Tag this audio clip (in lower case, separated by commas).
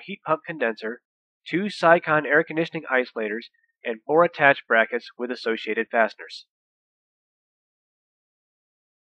speech